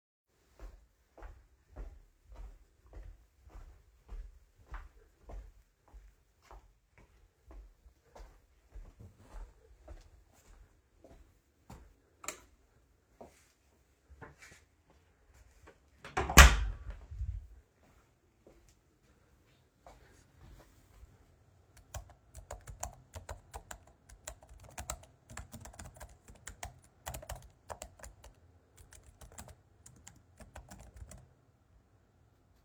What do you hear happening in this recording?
I walked in a hallway to the bedroom. I walked through the open door, turned on the light and closed the door behind me. After that I walked over to a desk where I typed on the keyboard.